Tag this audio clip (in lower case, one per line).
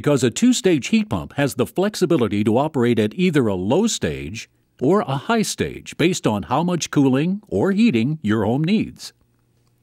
speech